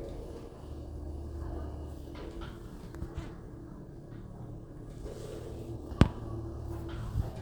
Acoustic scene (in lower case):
elevator